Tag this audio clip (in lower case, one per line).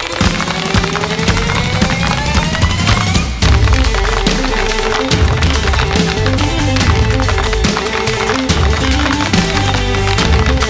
tap dancing